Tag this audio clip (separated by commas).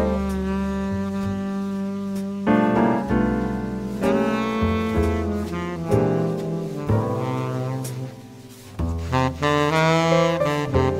Music